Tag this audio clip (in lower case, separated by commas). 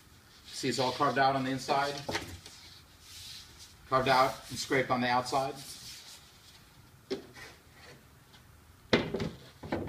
speech